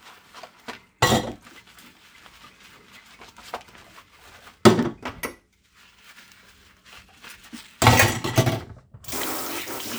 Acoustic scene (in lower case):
kitchen